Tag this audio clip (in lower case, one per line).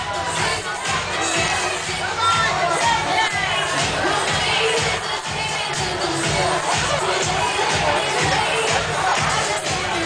crowd